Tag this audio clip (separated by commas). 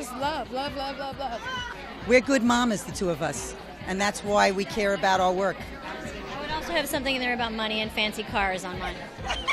Chatter, woman speaking, Music, Speech